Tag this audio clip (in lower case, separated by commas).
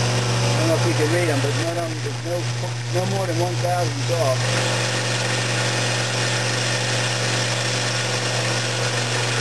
drill, tools, power tool